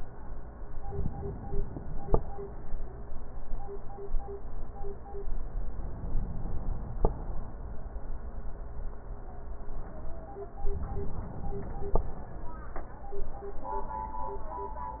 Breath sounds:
0.67-2.09 s: inhalation
5.61-7.02 s: inhalation
10.57-11.99 s: inhalation

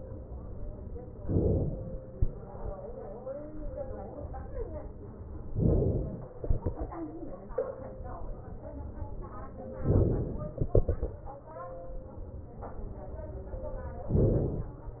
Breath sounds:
1.26-2.18 s: inhalation
5.60-6.37 s: inhalation
9.83-10.60 s: inhalation
10.60-12.36 s: exhalation
14.10-15.00 s: inhalation

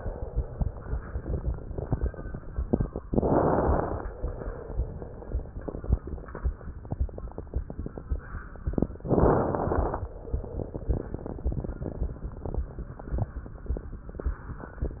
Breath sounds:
3.11-4.10 s: inhalation
3.11-4.10 s: crackles
9.09-10.08 s: inhalation
9.09-10.08 s: crackles

